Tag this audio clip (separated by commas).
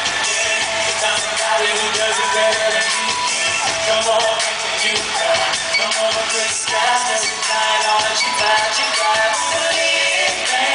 Male singing, Music